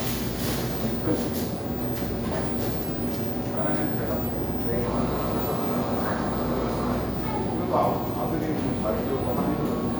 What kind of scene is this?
cafe